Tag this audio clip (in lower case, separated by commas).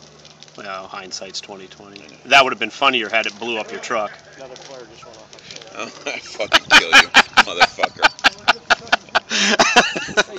outside, urban or man-made, fire, speech